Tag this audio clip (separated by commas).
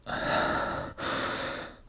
Respiratory sounds, Breathing